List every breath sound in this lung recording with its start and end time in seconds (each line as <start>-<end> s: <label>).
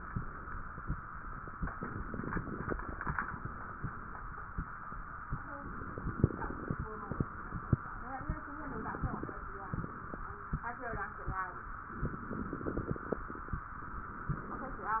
1.76-3.17 s: inhalation
1.76-3.17 s: crackles
5.60-6.85 s: inhalation
5.60-6.85 s: crackles
8.67-9.39 s: inhalation
8.67-9.39 s: crackles
11.99-13.30 s: inhalation
11.99-13.30 s: crackles